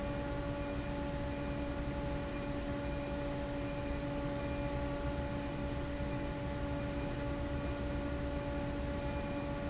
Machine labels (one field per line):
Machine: fan